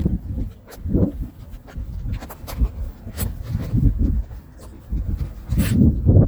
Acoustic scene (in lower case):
park